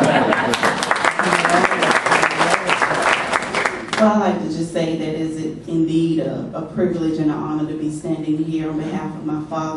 A crowd claps and a woman speaks